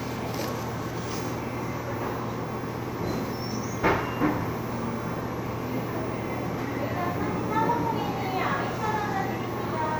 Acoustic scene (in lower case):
cafe